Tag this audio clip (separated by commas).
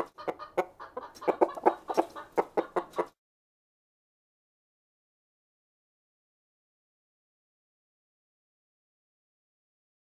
chicken clucking